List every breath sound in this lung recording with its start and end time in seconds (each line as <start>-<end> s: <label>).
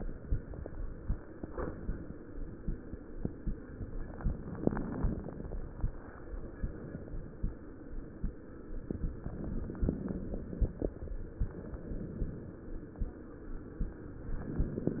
4.06-5.56 s: inhalation
4.06-5.56 s: crackles
9.22-10.89 s: inhalation
9.22-10.89 s: crackles